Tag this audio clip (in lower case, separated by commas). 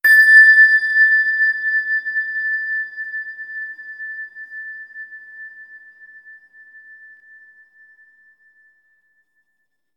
bell